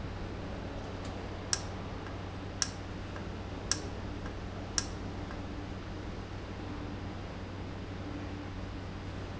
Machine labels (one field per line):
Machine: valve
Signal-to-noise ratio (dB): -6 dB